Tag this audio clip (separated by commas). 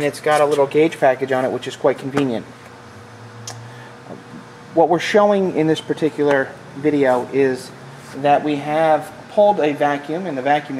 Speech